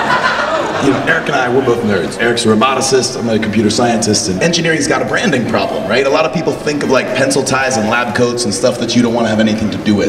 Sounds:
Speech

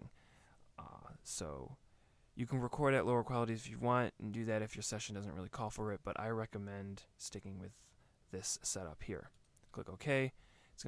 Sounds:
Speech

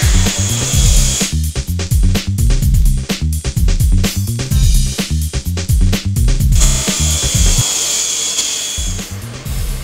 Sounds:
Music

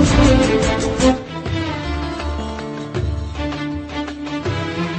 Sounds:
Music

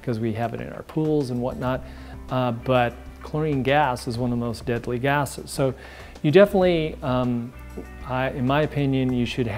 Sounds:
Music, Speech

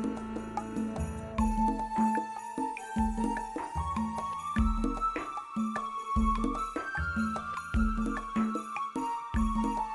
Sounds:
Music

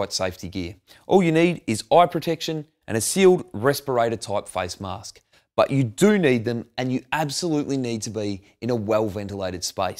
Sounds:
Speech

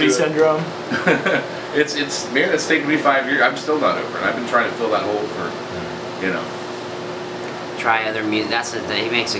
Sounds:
Speech

